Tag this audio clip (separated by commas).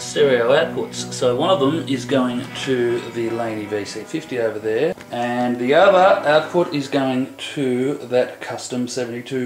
Speech, Music